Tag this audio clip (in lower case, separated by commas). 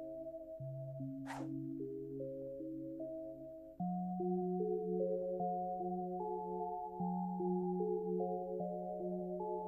music